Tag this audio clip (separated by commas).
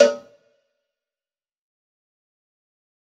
Cowbell, Bell